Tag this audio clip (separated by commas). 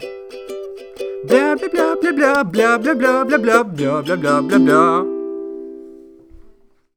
Human voice, Musical instrument, Music, Singing, Plucked string instrument